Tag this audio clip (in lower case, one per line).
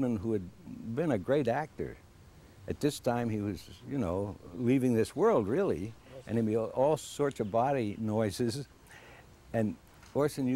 speech